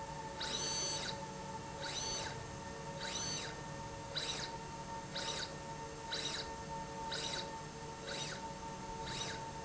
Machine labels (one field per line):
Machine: slide rail